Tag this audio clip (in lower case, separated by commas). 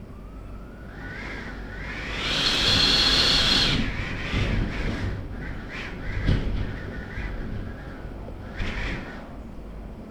wind